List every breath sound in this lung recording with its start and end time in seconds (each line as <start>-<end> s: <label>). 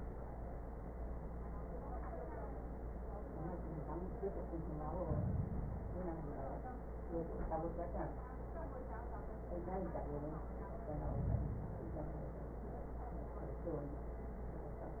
4.78-6.28 s: inhalation
10.76-12.26 s: inhalation